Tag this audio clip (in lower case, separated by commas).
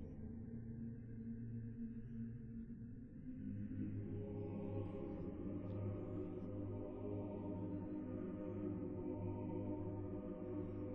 music